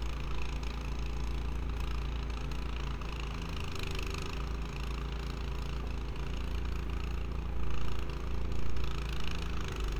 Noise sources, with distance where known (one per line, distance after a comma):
unidentified impact machinery